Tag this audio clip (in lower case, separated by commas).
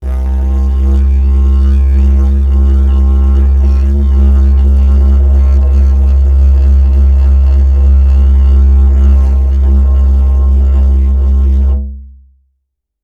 music, musical instrument